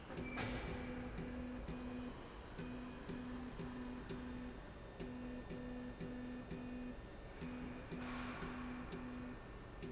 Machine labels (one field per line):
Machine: slide rail